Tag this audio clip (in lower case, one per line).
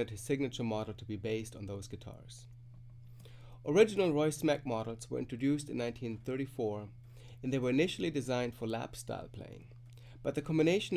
speech